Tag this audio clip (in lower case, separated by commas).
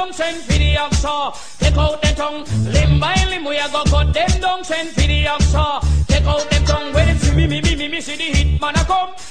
music